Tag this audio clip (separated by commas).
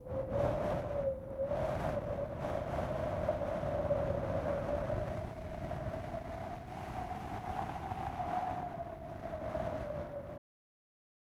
Wind